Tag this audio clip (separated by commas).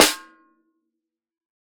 Snare drum, Drum, Percussion, Music, Musical instrument